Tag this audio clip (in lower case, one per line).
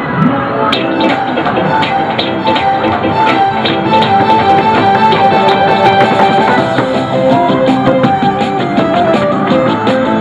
music